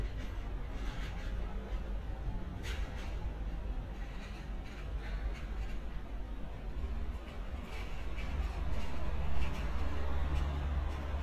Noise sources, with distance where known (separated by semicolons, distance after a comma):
engine of unclear size